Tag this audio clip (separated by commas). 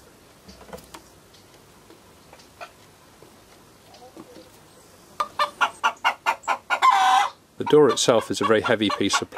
Speech, Chicken, outside, rural or natural, Fowl